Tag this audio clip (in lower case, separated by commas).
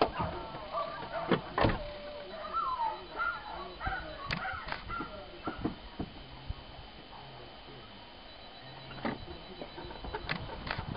animal